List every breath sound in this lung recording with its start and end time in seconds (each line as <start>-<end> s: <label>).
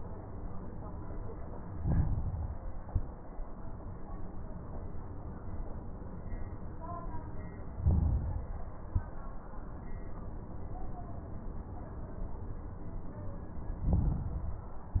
1.77-2.87 s: inhalation
1.80-2.77 s: crackles
2.87-3.34 s: exhalation
2.87-3.34 s: crackles
7.75-8.72 s: inhalation
7.75-8.72 s: crackles
8.81-9.21 s: exhalation
8.81-9.21 s: crackles
13.81-14.78 s: inhalation
13.81-14.78 s: crackles